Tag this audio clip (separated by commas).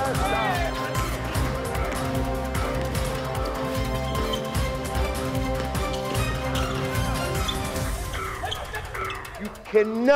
Male speech, Music, Speech